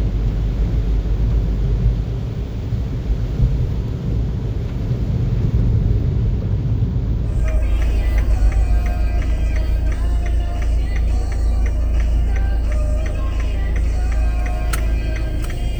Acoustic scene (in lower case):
car